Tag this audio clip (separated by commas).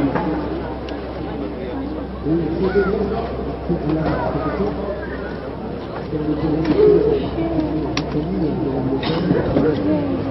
Speech